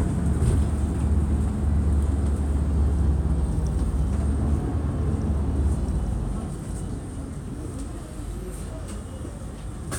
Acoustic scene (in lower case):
bus